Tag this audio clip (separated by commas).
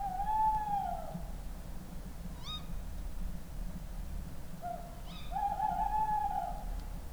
Wild animals, Animal, Bird